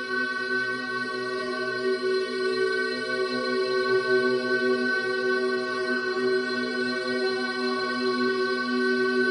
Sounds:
Music

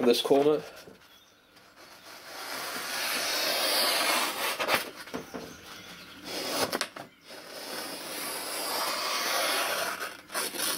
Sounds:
Speech, inside a small room

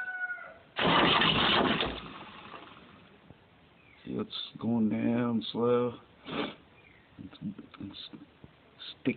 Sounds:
Speech

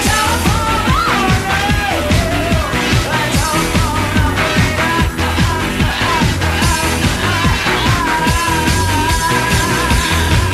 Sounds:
Music

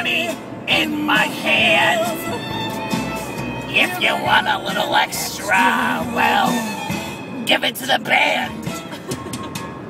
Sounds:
Music, Male singing

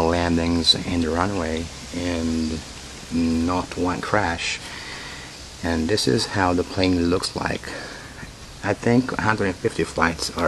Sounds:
Speech

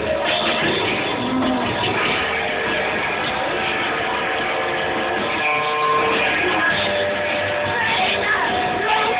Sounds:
Bass guitar, Strum, Music, Plucked string instrument, Musical instrument, Guitar

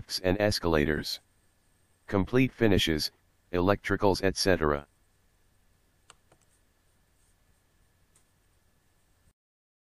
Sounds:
Speech

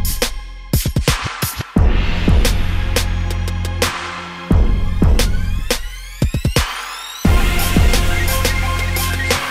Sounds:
Music

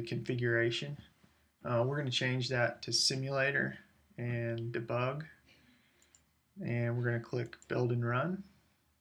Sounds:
Speech

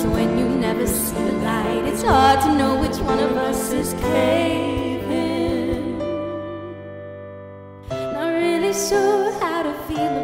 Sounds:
Singing, Music

